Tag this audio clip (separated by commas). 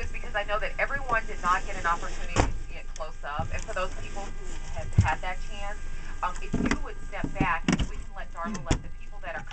Speech